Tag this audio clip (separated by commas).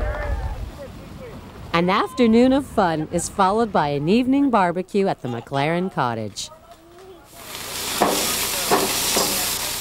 outside, rural or natural, Speech